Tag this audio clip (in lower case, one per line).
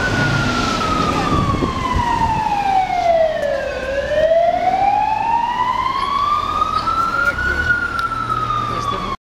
speech
vehicle
car